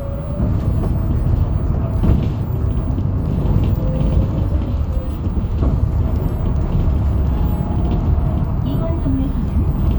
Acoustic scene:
bus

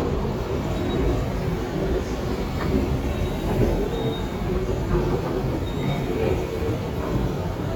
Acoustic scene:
subway station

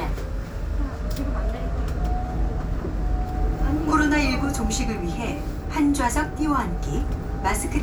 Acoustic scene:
bus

